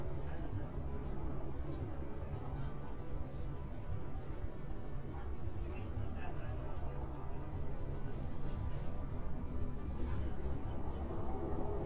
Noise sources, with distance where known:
person or small group talking, far

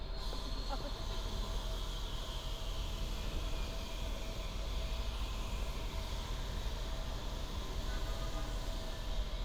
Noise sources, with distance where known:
engine of unclear size; car horn, far

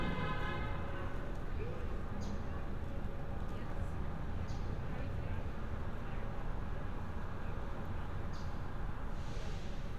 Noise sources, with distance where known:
car horn, near; person or small group talking, far

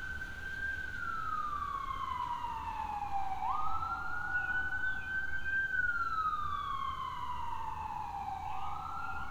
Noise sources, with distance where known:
siren

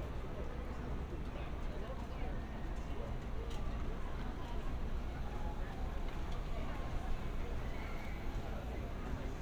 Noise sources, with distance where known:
background noise

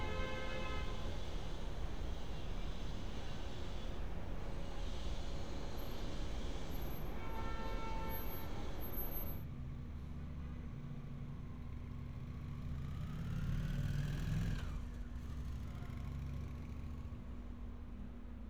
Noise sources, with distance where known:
engine of unclear size; car horn, far

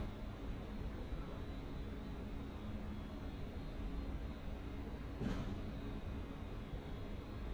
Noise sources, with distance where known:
non-machinery impact

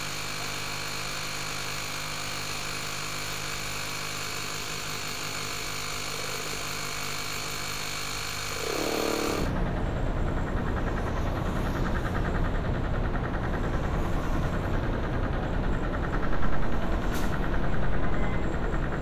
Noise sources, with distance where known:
unidentified impact machinery

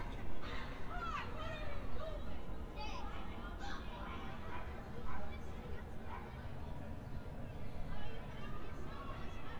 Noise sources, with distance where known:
person or small group shouting, far

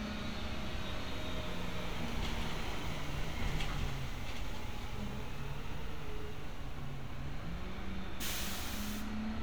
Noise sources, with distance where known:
medium-sounding engine, far; large-sounding engine

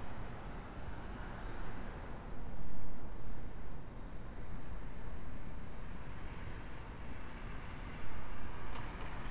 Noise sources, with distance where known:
background noise

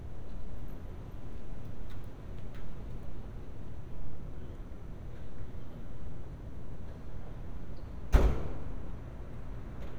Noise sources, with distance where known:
non-machinery impact, near

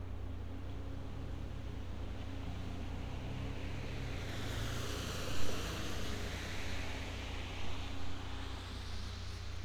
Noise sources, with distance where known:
engine of unclear size

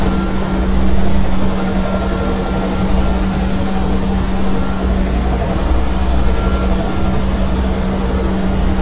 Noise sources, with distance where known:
large-sounding engine, near

